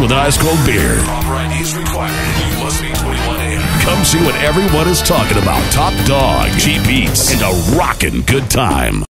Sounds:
Speech, Music

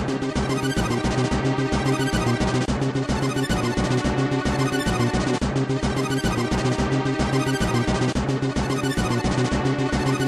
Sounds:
Music

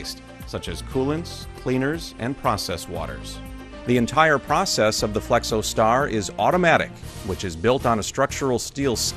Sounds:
Music, Speech

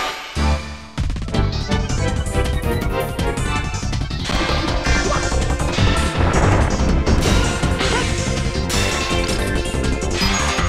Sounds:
Sound effect, Music

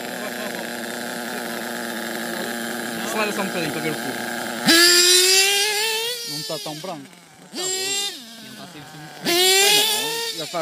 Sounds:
Speech

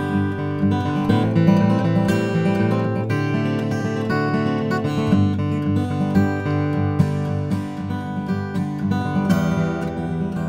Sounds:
Strum, Plucked string instrument, Music, Musical instrument, Guitar

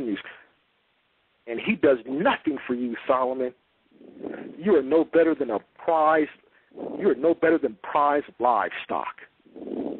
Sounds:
Speech

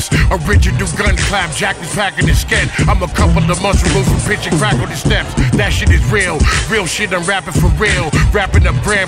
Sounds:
Rapping, Music, Hip hop music

